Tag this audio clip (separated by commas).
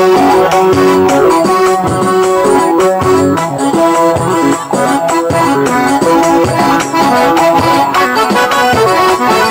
Wedding music, Music